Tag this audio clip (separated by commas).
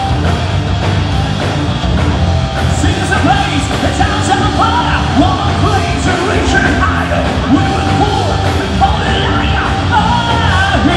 Music